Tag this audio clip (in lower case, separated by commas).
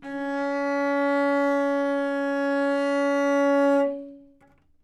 music, bowed string instrument, musical instrument